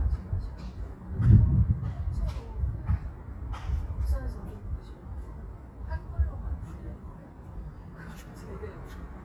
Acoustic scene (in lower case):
residential area